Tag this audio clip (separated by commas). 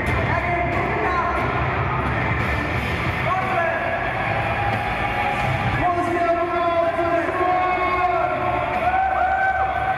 inside a public space, Music, Speech